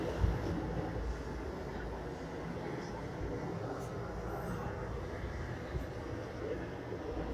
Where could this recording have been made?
on a subway train